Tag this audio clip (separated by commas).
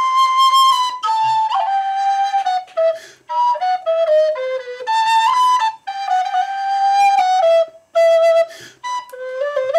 woodwind instrument, Flute, Music, Musical instrument